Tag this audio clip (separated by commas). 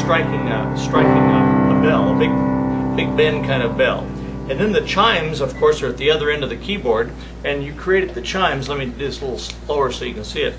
Music, Speech